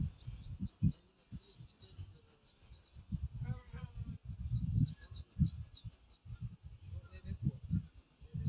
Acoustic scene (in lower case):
park